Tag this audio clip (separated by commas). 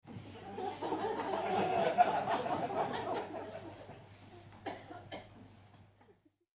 Laughter, Human voice, Human group actions, Crowd